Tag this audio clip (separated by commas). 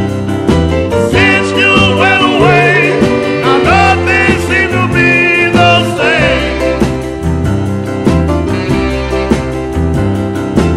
Happy music, Music